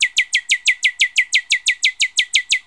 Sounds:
Wild animals, Bird, bird call, Animal

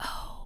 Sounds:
Human voice, Whispering

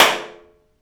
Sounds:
Hands, Clapping

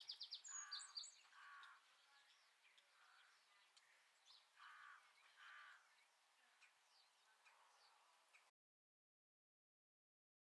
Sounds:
Bird, tweet, Animal, Bird vocalization, Wild animals

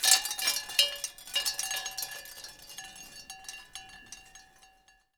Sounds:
Wind chime, Bell, Chime

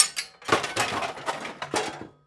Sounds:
Tools

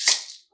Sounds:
Musical instrument, Music, Percussion, Rattle (instrument)

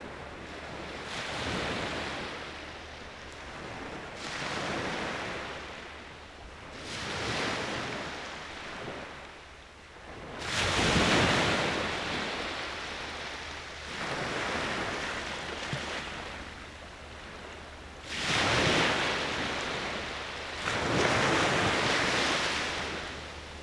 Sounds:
Ocean, surf, Water

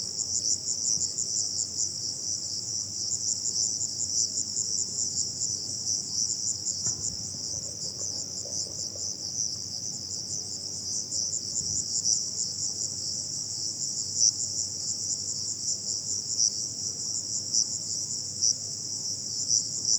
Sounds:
Wild animals, Animal, Insect, Cricket

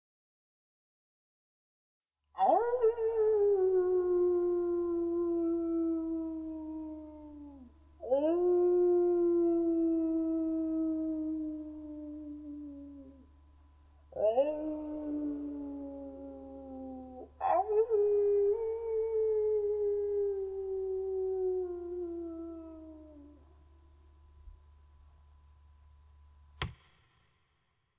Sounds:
Dog, Animal, pets

